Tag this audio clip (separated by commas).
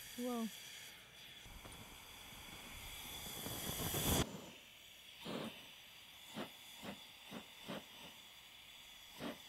blowtorch igniting